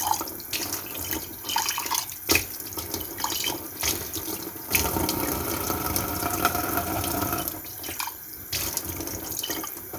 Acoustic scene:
kitchen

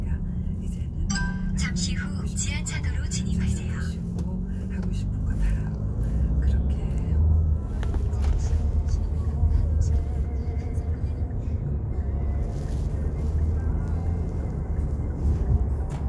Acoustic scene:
car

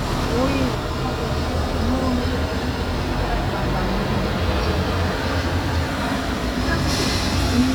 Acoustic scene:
street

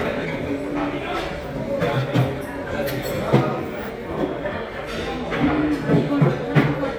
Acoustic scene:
restaurant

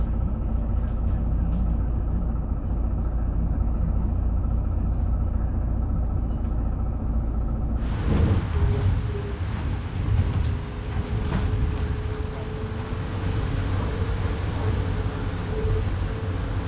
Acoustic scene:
bus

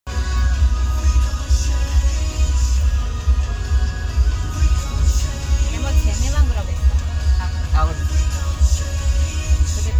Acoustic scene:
car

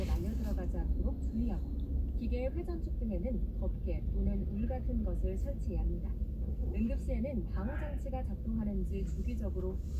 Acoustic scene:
car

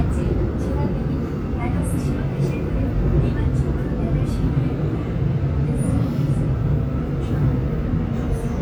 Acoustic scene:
subway train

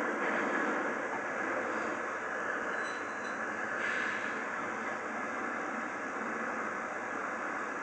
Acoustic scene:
subway train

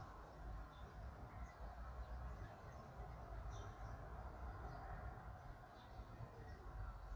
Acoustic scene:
park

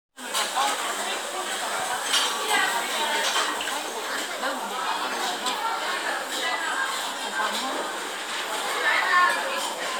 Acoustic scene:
restaurant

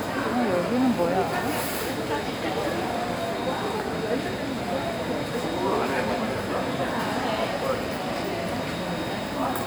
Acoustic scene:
crowded indoor space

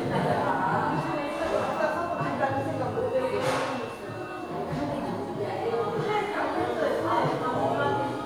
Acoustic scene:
crowded indoor space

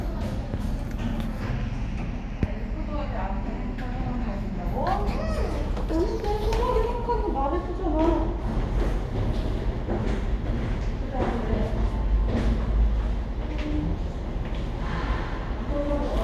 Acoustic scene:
elevator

